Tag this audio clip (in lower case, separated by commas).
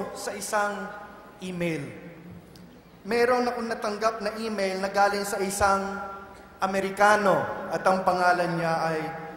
narration, man speaking, speech